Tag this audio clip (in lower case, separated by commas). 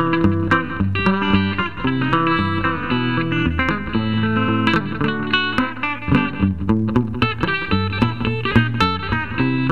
music, plucked string instrument, musical instrument, guitar, inside a small room